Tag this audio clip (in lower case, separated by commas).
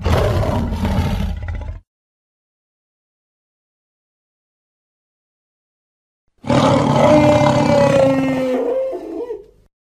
dinosaurs bellowing